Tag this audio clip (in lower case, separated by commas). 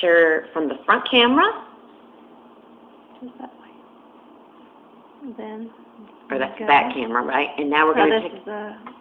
speech